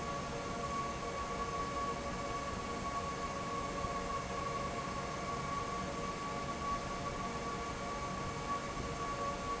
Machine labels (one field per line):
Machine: fan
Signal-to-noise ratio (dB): -6 dB